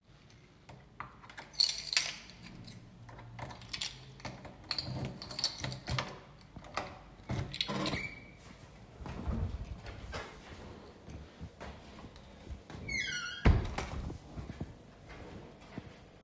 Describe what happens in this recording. I brought my key and opened the door. Then I closed the door and walked into my room.